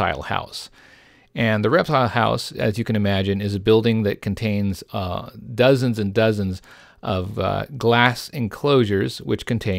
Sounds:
speech

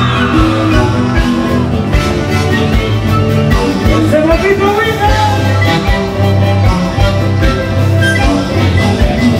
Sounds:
music
speech

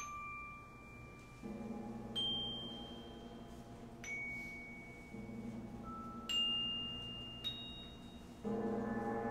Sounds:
percussion
music
glockenspiel

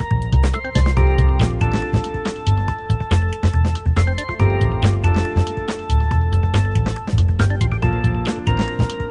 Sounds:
music
background music

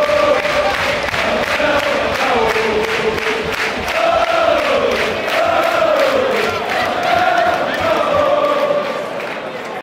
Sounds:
speech

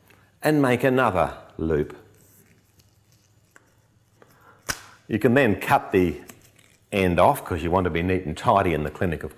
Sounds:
speech

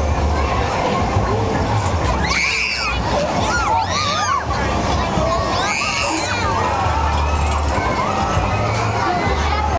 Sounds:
speech

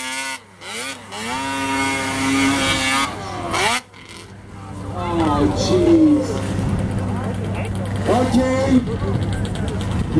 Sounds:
outside, rural or natural
speech
vehicle

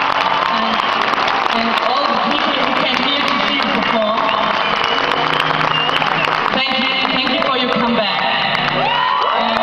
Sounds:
music
monologue
female speech
speech

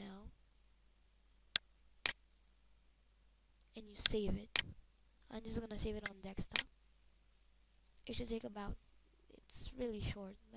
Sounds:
speech

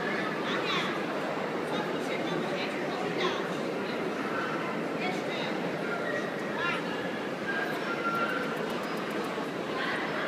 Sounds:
speech

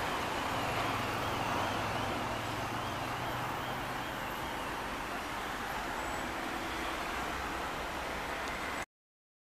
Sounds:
vehicle
car

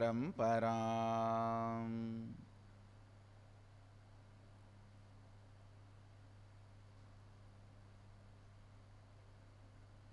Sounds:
mantra

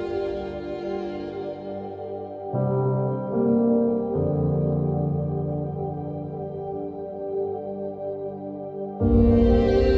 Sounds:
music

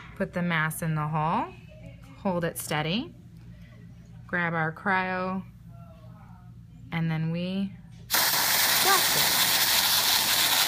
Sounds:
speech

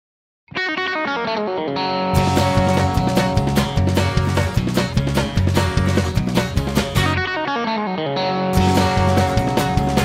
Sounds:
music

